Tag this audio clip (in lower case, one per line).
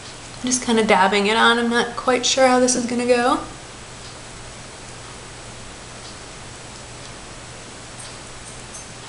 speech